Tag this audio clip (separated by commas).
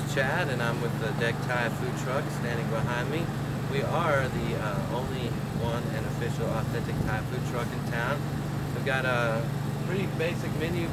Vehicle, Speech